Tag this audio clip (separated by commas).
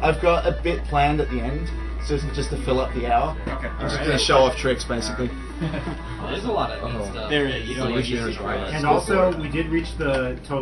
Speech, Music